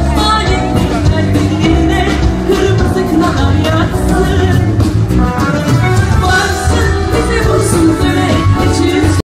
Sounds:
female singing, music

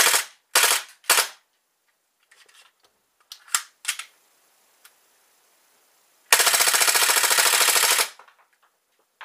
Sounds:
inside a small room

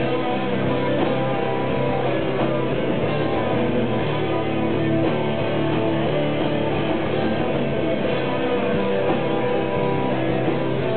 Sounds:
music, roll, rock and roll

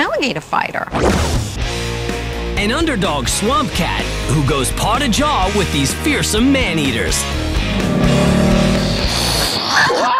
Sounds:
music, speech

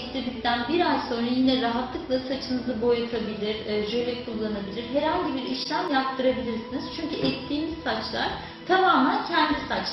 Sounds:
music, speech

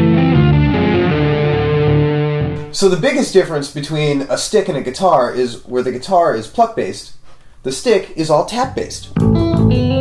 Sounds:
blues, tapping (guitar technique), bass guitar, speech, music, musical instrument, guitar

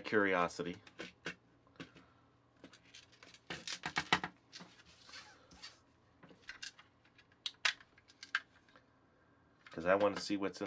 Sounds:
cap gun shooting

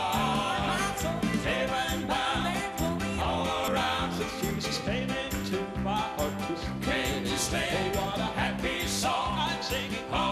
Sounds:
male singing, music

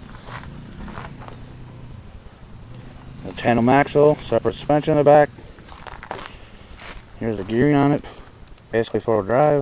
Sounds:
speech

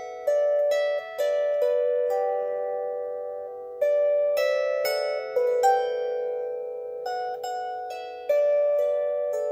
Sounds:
playing zither

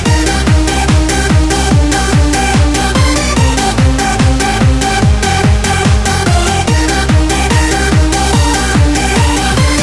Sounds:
music

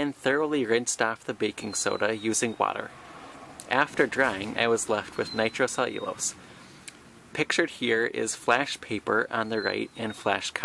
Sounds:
speech

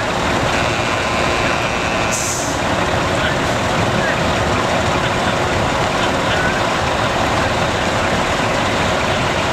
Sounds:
vehicle, truck

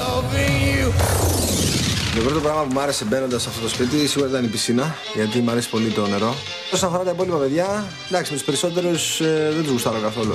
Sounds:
music, speech

